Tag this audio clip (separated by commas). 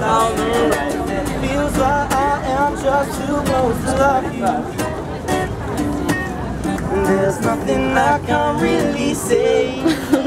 Singing, Musical instrument, Speech, Plucked string instrument, Music